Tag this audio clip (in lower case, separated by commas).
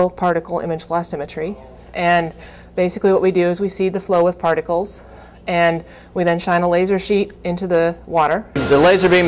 speech